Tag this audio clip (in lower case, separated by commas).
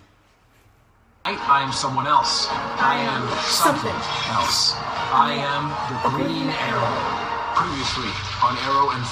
speech, music